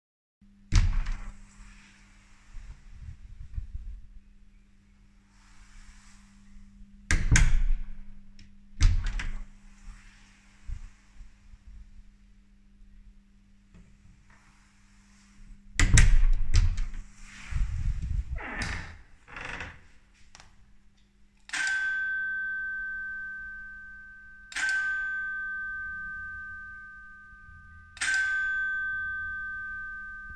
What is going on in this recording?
i open and close the main door multiple time and then ring the home bell